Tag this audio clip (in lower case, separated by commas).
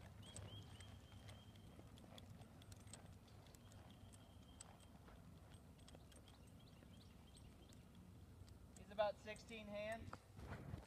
clip-clop, speech